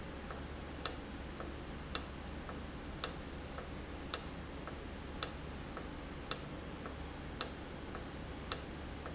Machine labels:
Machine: valve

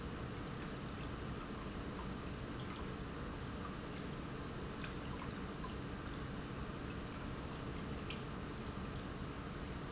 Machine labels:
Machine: pump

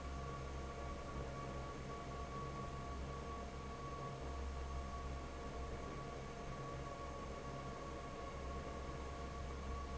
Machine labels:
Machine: fan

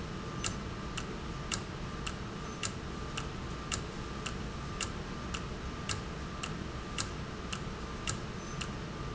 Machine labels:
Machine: valve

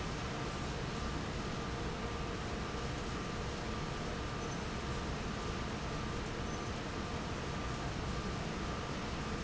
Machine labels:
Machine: fan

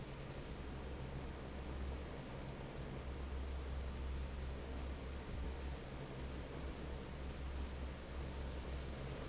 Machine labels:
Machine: fan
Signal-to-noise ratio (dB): 6 dB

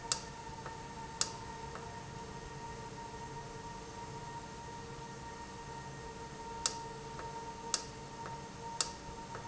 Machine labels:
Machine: valve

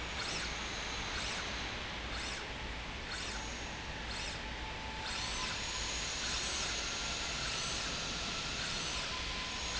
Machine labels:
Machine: slide rail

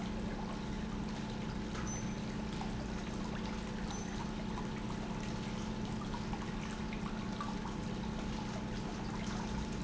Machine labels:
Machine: pump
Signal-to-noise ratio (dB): -6 dB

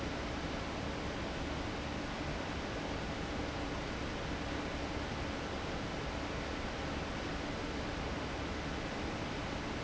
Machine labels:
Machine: fan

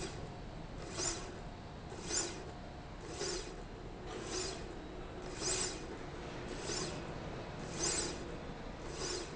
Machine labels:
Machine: slide rail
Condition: normal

